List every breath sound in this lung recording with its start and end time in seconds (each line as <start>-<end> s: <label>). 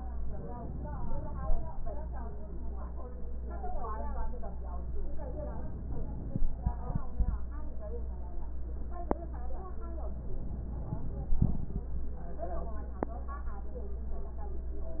5.14-6.33 s: inhalation
10.30-11.48 s: inhalation